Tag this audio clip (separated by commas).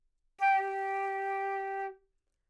Musical instrument, woodwind instrument, Music